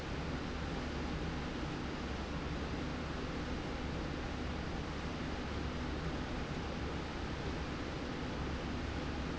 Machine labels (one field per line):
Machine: slide rail